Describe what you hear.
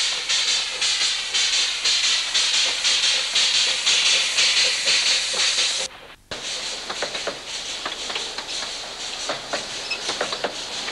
Hissing sound of an engine gets louder as it approaches